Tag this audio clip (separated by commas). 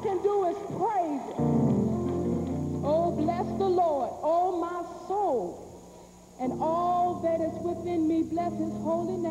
Speech, Music